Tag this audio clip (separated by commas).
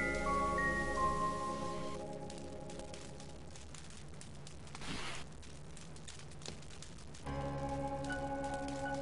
Mallet percussion, Marimba, Glockenspiel